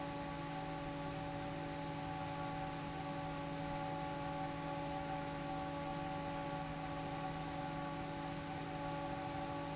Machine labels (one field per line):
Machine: fan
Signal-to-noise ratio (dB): 0 dB